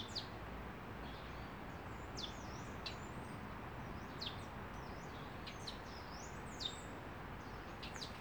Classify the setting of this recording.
park